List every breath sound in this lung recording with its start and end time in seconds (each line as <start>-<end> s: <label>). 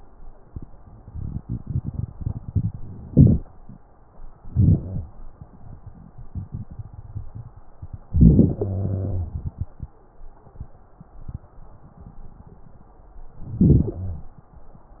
3.08-3.41 s: inhalation
4.37-5.08 s: inhalation
4.83-5.08 s: wheeze
8.09-8.61 s: inhalation
8.59-9.38 s: exhalation
8.59-9.38 s: wheeze
13.43-14.32 s: inhalation
13.95-14.32 s: wheeze